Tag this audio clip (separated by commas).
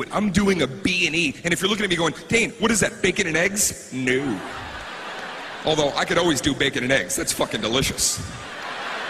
Speech